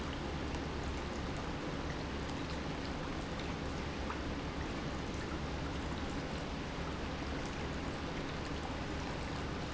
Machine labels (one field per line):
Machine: pump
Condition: normal